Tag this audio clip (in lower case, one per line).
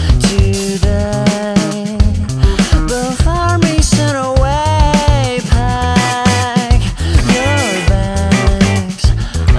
music